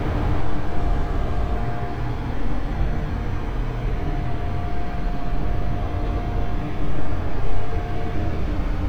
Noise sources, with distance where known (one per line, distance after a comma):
large-sounding engine